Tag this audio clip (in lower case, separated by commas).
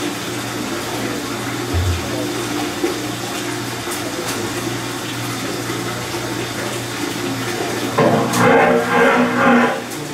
engine, medium engine (mid frequency)